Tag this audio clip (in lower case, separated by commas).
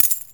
coin (dropping), domestic sounds